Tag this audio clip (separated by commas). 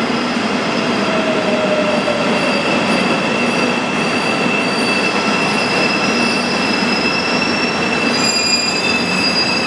Rail transport, Vehicle, Railroad car, Train, Subway